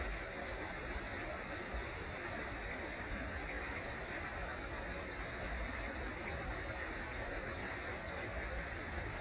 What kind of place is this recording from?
park